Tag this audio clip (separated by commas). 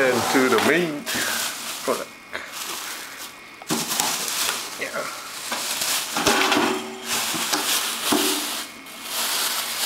Speech